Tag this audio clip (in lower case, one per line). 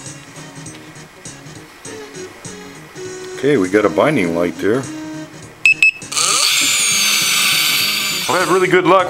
music
speech